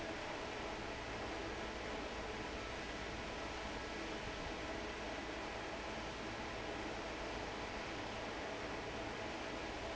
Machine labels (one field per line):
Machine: fan